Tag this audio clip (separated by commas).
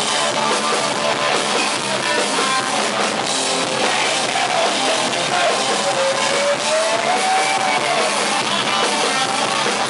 Music, Guitar, Musical instrument, Plucked string instrument